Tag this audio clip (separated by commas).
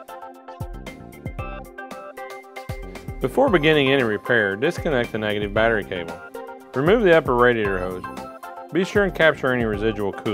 Music, Speech